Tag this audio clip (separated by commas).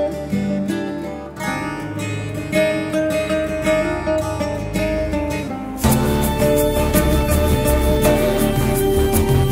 Music